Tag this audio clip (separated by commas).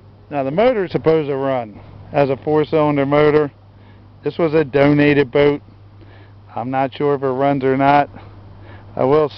Speech